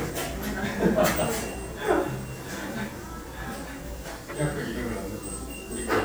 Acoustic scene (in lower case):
cafe